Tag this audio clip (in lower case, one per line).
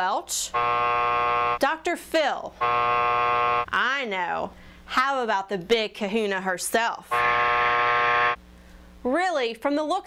speech